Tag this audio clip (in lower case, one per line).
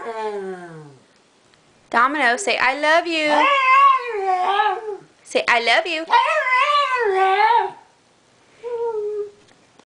animal
dog
speech
pets